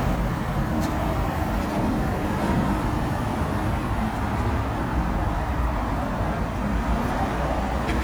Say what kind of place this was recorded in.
street